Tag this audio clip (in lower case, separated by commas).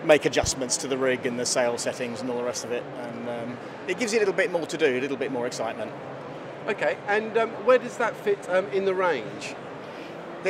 speech